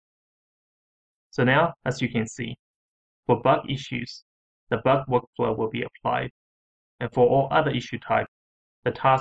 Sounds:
Speech synthesizer

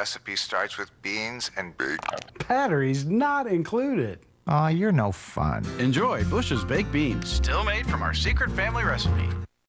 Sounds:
Music, Speech

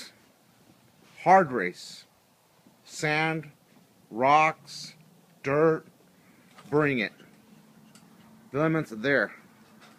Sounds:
Speech

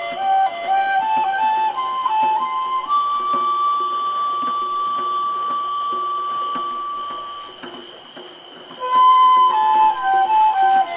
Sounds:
Flute, Music

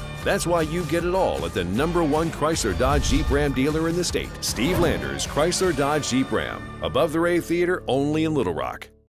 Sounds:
Music, Speech

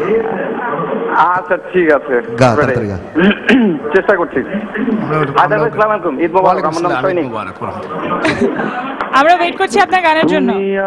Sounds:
Speech

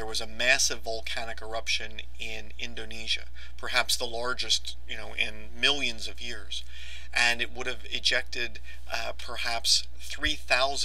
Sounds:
Speech

